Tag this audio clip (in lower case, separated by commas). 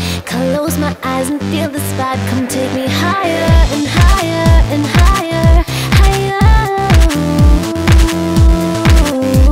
pop music, music, dance music